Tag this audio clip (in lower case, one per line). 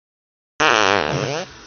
fart